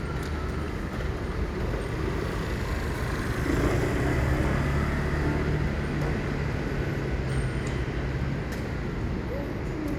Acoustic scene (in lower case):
street